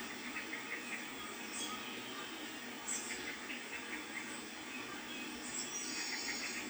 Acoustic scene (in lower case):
park